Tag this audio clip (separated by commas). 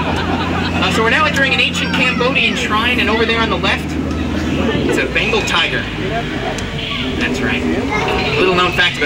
Water vehicle, Speech